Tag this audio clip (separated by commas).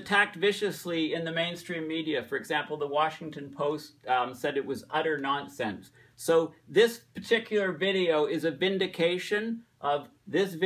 Speech